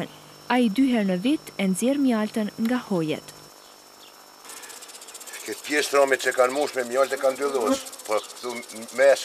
A woman talks in another language as another person talks also